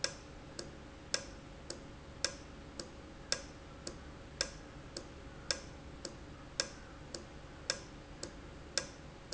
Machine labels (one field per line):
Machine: valve